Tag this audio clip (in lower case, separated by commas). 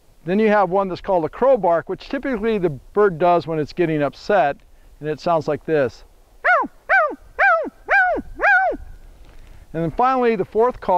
animal, speech